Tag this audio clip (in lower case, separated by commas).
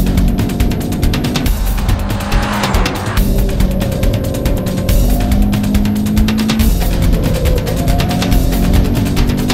music